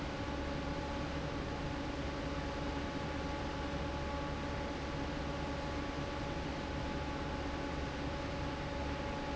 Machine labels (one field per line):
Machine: fan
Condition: normal